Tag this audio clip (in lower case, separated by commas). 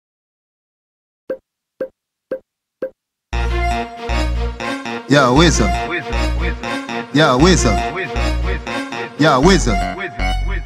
inside a small room, music